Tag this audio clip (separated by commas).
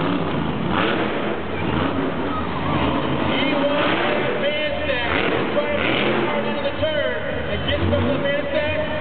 Vehicle, Speech